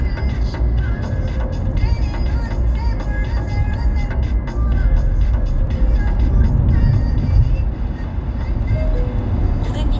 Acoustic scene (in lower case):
car